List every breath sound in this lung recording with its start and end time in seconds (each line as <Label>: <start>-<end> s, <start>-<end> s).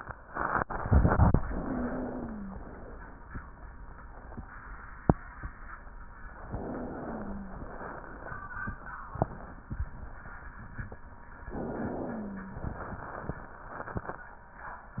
Inhalation: 1.43-2.61 s, 6.42-7.61 s, 11.44-12.63 s
Wheeze: 1.43-2.61 s, 1.43-2.61 s, 6.42-7.61 s, 11.44-12.63 s